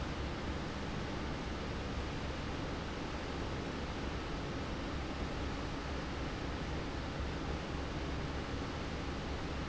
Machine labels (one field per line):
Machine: fan